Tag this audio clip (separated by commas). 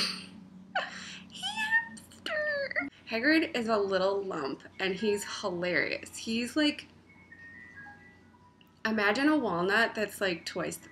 Speech